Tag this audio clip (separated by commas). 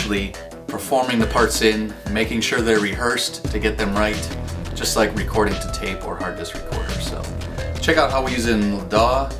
Speech, Music